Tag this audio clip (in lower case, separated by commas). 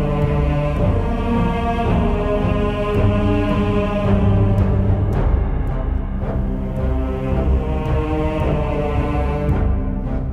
music, background music